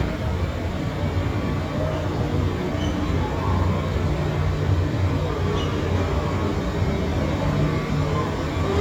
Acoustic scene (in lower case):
subway station